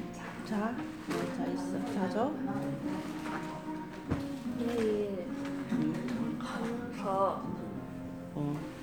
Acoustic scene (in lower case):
crowded indoor space